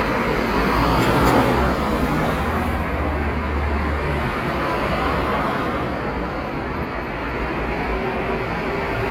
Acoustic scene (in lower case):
street